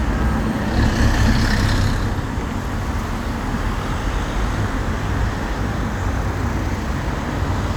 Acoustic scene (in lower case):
street